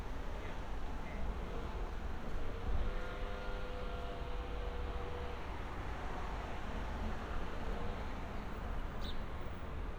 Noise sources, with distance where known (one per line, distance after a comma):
engine of unclear size, far